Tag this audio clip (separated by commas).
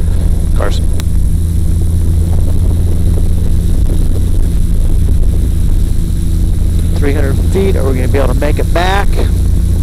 Vehicle, Propeller